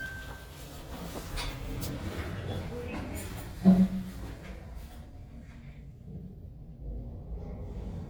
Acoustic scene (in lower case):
elevator